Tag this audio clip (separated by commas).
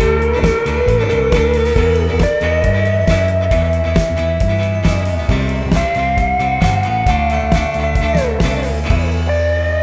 Steel guitar, Music